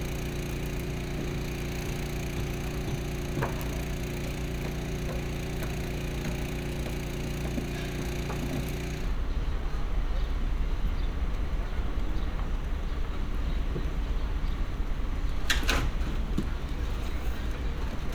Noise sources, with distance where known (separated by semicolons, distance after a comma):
non-machinery impact